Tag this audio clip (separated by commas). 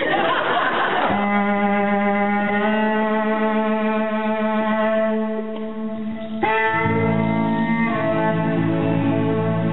fiddle, Musical instrument, Music